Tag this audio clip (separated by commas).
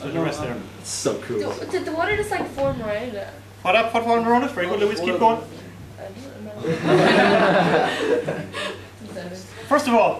Female speech, Speech